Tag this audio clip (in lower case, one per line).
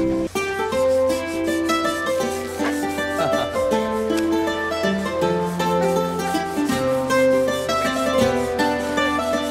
flamenco
music